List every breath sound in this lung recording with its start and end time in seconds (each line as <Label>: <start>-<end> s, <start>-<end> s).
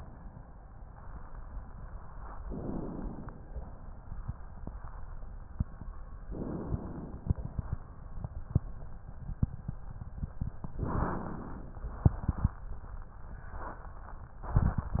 Inhalation: 2.45-3.42 s, 6.24-7.27 s, 10.81-11.84 s